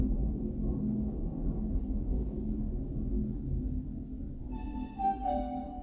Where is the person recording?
in an elevator